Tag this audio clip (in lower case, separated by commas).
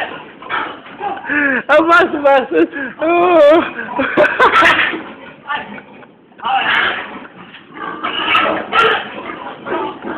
oink, speech